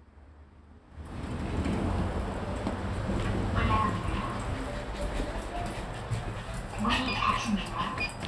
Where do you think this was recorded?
in an elevator